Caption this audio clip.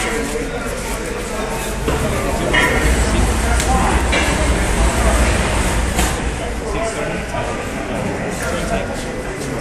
Many voices speak, and something metal clanks